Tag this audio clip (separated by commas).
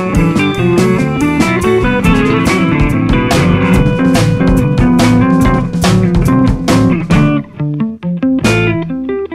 Theme music, Music, Soundtrack music